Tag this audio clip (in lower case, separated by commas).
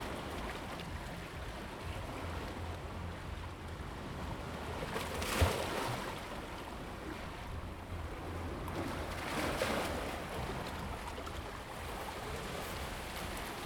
ocean, waves, water